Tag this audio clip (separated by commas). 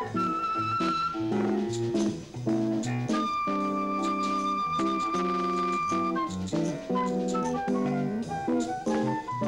Music